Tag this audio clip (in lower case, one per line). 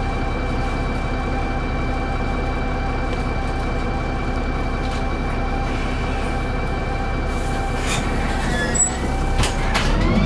fire truck (siren)